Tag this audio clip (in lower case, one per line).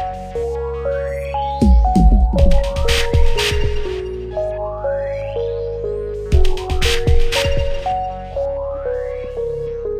music
drum machine